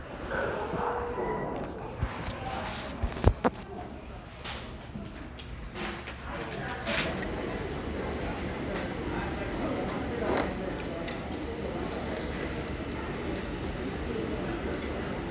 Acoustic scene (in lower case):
crowded indoor space